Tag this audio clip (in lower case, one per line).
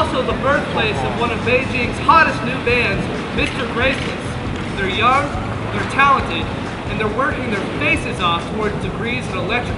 speech